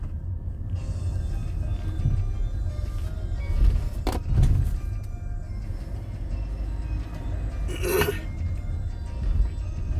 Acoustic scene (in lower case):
car